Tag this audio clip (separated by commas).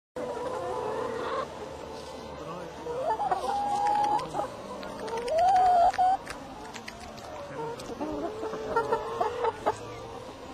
livestock, Speech, rooster, Bird